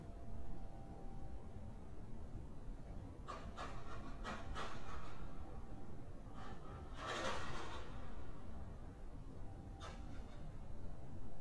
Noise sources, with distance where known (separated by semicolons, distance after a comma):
background noise